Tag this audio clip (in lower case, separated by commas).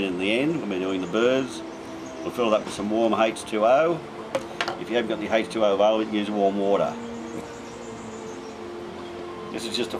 music, speech, coo, animal, bird